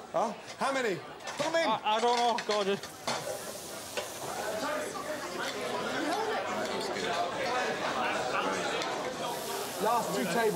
Men speak as dishes clink and food sizzles with people speaking in the distance